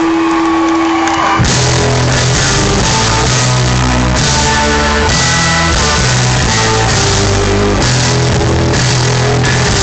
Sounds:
Music

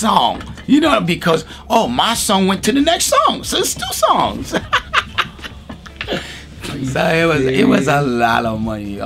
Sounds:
Speech, Music

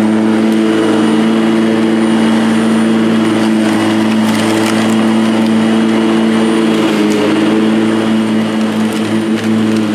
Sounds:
lawn mowing

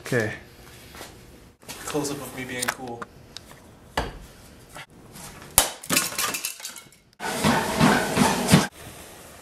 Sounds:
Speech

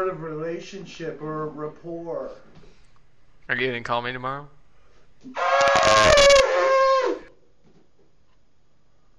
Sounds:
Speech

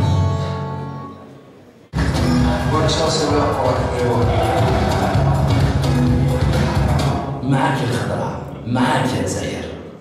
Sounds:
Music, Speech

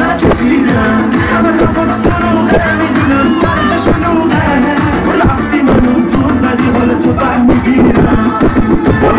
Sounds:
Music, Sound effect

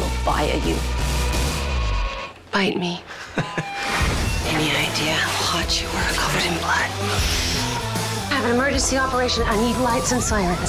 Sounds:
Music, Speech

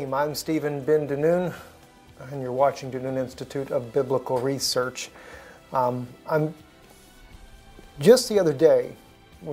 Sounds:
Speech, Music

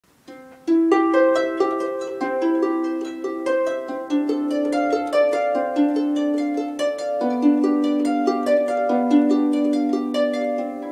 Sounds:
playing harp

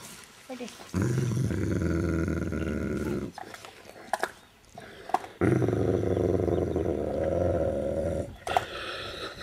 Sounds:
Animal, Domestic animals, Whimper (dog), Dog

